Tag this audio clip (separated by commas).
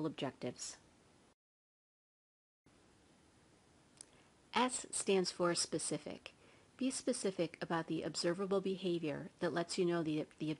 Speech